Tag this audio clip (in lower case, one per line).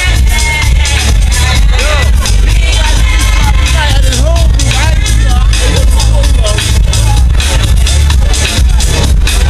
speech
dance music
music